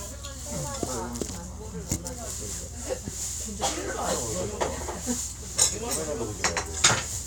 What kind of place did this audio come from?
restaurant